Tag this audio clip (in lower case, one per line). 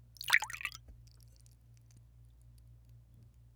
liquid